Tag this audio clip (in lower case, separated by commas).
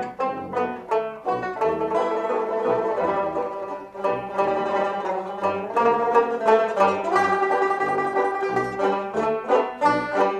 orchestra, music